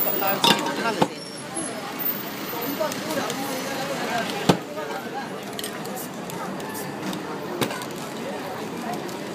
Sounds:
Speech, Spray

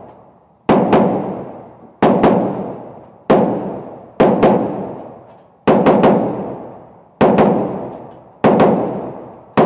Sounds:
inside a large room or hall

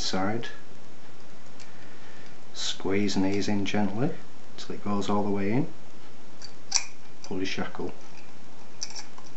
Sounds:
Speech

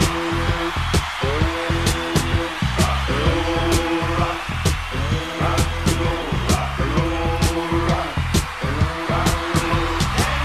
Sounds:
Music, Rock and roll

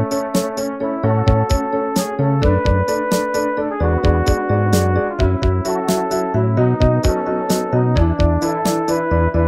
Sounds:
Music, Video game music

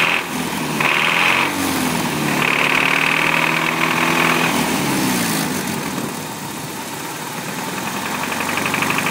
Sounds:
Lawn mower

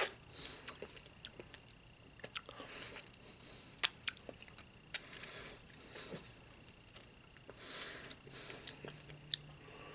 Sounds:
people eating apple

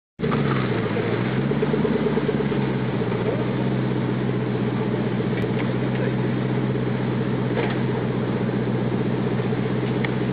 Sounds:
Vehicle, Speech

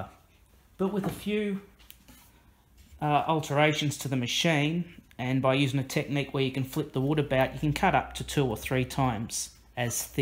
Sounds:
Speech

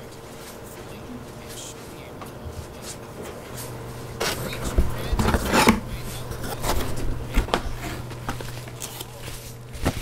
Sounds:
Speech

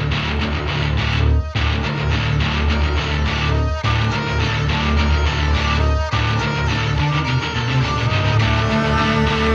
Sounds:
Music

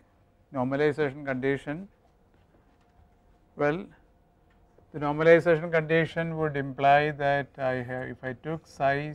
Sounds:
Speech

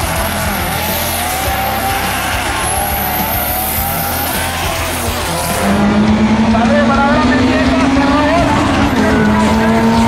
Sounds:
Speech

